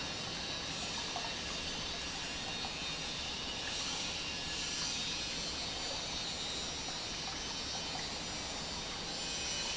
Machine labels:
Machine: pump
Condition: normal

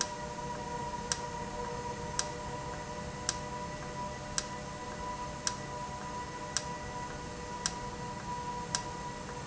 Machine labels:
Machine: valve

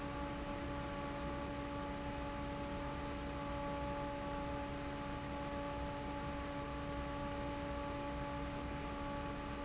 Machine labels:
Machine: fan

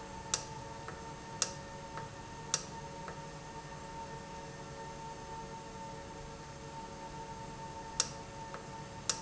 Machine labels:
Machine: valve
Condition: normal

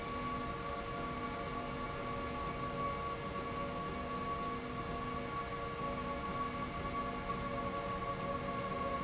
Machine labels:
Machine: slide rail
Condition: normal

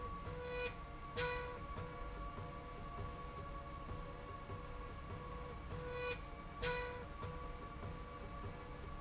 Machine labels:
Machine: slide rail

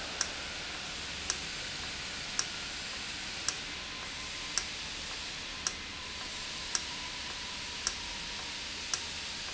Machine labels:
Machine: valve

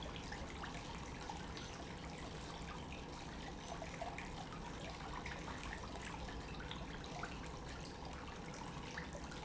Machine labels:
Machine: pump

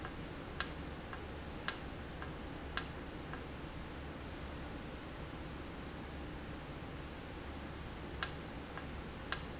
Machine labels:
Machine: valve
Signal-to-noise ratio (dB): 0 dB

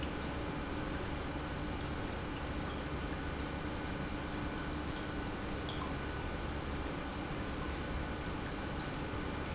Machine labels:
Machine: pump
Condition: normal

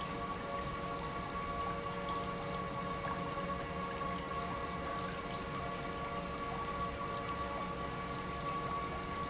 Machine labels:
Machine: pump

